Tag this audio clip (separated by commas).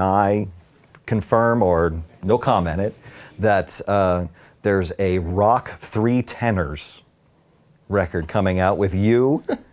Speech